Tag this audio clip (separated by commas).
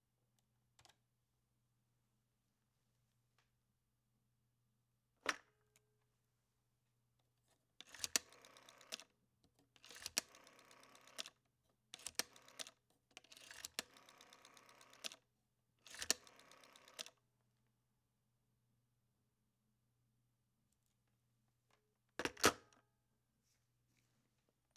Alarm, Telephone